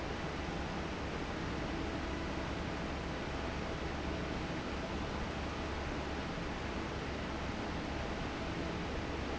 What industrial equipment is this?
fan